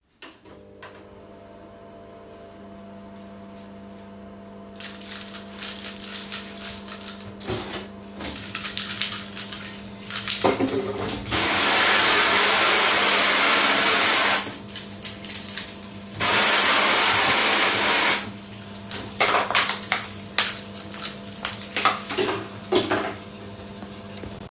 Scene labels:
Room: kitchen; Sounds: microwave, keys, running water

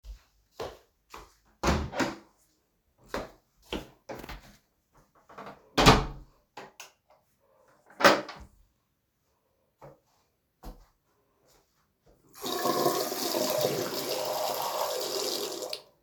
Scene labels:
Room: lavatory; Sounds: footsteps, door (more than once)

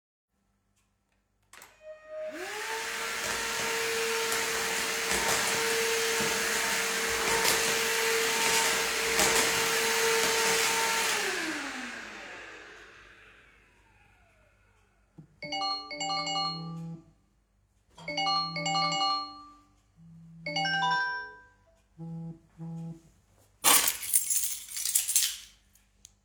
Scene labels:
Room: hallway; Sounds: vacuum cleaner, phone ringing, keys

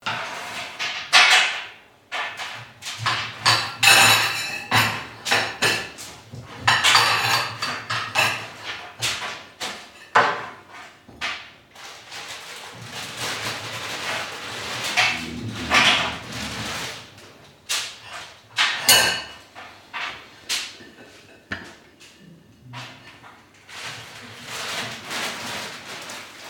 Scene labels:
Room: kitchen; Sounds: cutlery and dishes

